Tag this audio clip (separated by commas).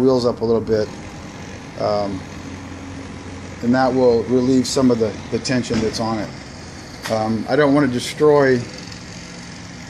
inside a large room or hall, Speech